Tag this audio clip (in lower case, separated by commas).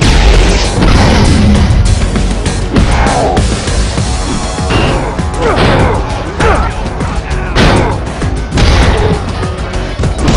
speech, music